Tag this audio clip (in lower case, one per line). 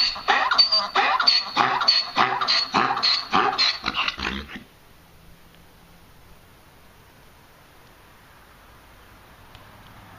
ass braying